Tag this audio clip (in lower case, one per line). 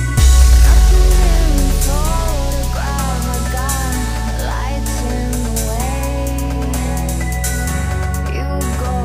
dubstep
electronic music
music